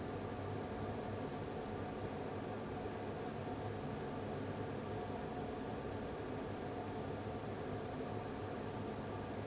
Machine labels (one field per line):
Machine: fan